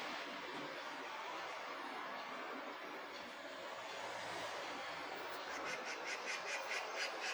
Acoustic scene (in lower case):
park